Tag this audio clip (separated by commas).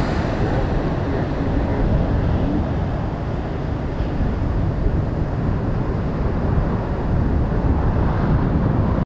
Water